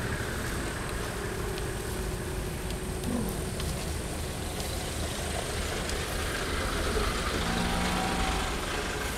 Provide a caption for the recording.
Water is splashing